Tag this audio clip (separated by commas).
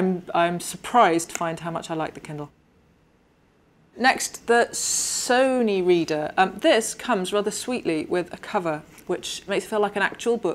Speech